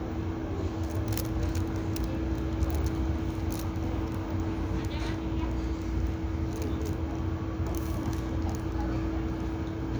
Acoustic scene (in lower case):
residential area